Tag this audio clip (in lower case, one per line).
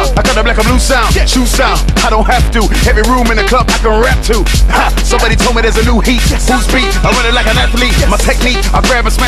music